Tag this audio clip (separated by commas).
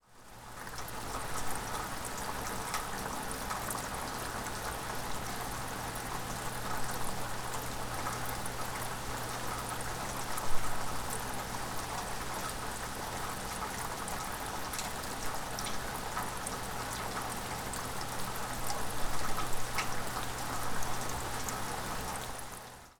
Water, Rain